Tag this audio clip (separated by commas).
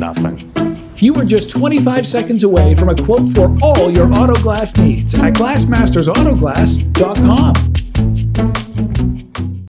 Music, Speech